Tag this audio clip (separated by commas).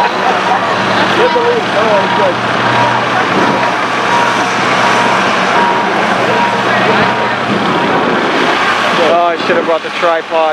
Speech